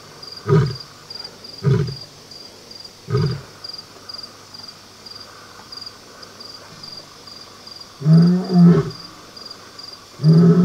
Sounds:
lions roaring

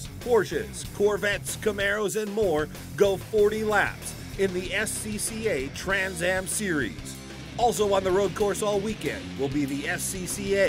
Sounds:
Music, Speech

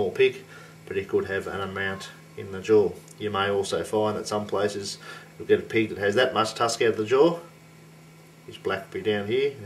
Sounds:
Speech

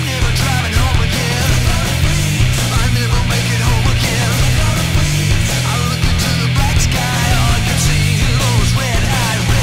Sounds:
Music

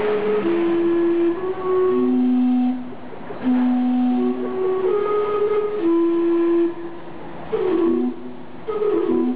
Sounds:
Music, Speech

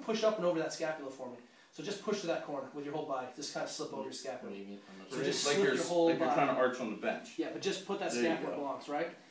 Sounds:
Speech

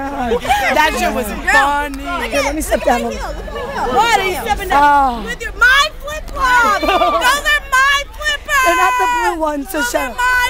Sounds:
Speech

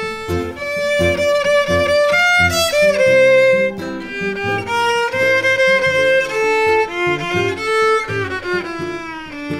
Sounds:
Bowed string instrument, fiddle, String section, Music

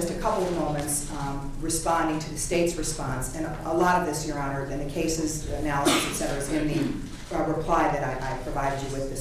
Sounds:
Speech

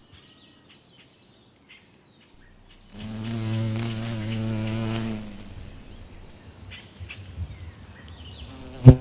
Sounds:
bee or wasp, etc. buzzing, housefly, Insect

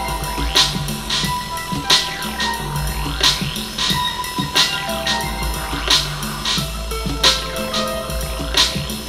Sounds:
Sound effect, Music

